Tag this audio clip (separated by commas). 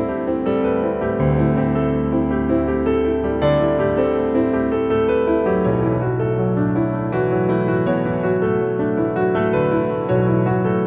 Tender music, Music